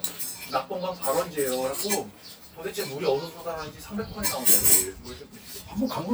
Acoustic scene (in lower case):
restaurant